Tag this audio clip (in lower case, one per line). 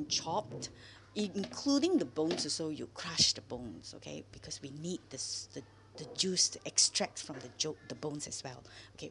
speech